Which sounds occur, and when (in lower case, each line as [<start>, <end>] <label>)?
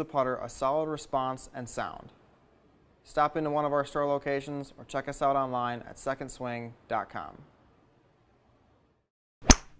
[0.00, 2.07] male speech
[0.00, 9.06] background noise
[3.07, 4.71] male speech
[4.79, 6.73] male speech
[6.92, 7.35] male speech
[9.44, 9.75] sound effect